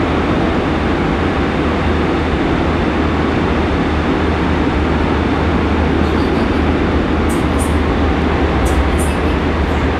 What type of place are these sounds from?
subway train